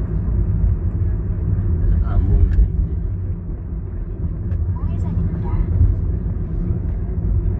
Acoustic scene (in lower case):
car